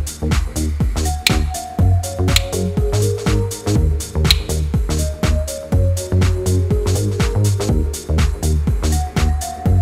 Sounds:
music
tools

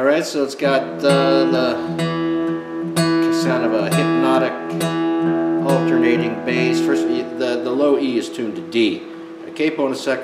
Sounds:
musical instrument
strum
plucked string instrument
music
speech
guitar
acoustic guitar

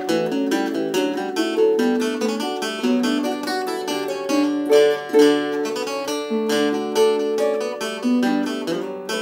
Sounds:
plucked string instrument
music
musical instrument
guitar

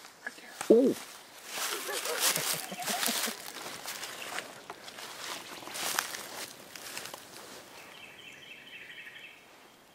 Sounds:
bird
speech
animal

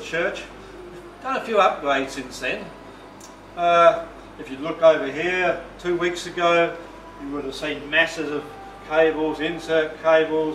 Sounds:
speech

